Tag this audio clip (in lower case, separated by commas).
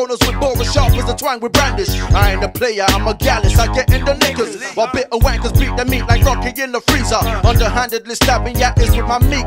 rapping, music, hip hop music